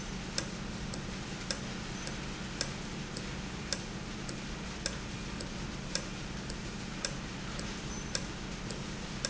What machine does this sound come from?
valve